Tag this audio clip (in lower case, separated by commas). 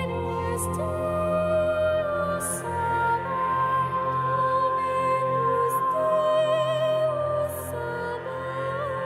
opera, music, singing